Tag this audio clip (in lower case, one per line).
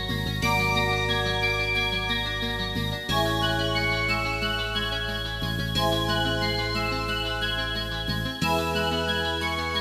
music
soundtrack music